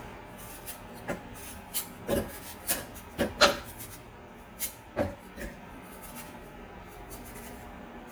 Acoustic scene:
kitchen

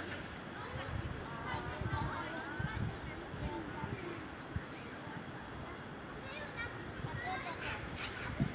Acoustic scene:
residential area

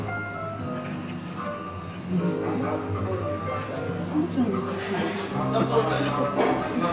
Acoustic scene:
cafe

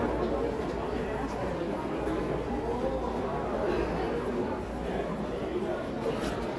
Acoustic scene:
subway station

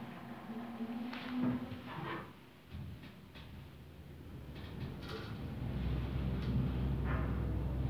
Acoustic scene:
elevator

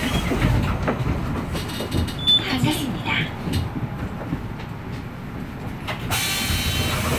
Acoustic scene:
bus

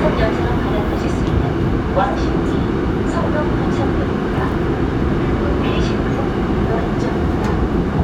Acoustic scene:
subway train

